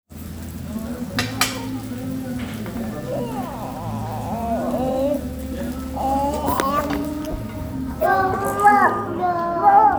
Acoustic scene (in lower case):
restaurant